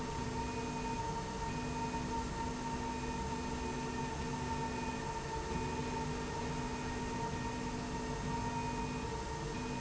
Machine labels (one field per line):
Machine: slide rail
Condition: normal